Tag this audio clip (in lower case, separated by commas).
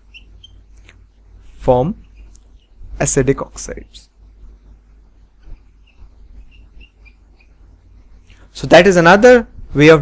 inside a small room, speech